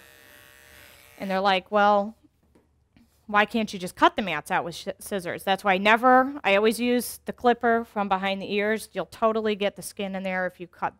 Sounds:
speech

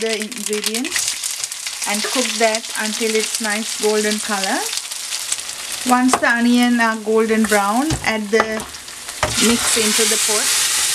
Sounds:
inside a small room, speech

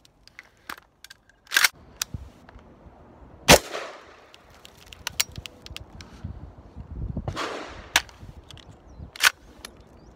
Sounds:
machine gun shooting, machine gun

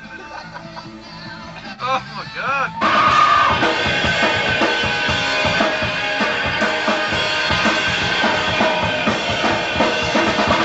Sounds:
music, speech

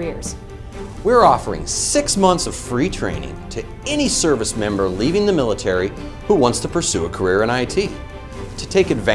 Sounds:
speech, music

